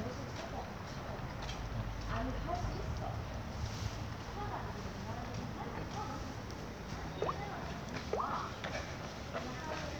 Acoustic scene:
residential area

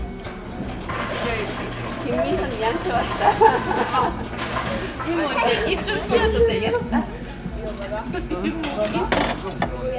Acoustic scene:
crowded indoor space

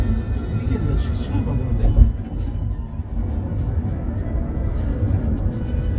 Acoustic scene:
car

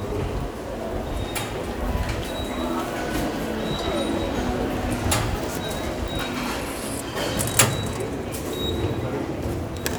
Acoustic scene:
subway station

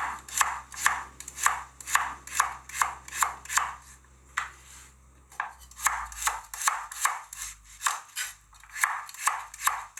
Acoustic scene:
kitchen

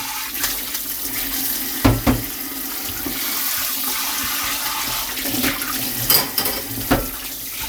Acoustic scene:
kitchen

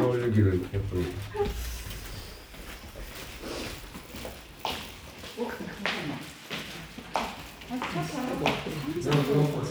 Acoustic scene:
elevator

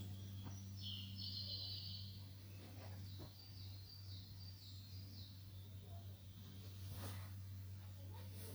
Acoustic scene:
park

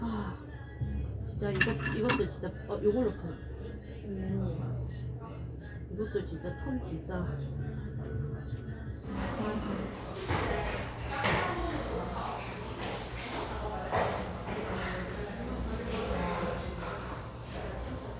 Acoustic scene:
cafe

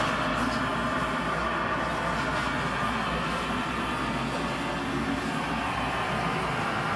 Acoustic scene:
kitchen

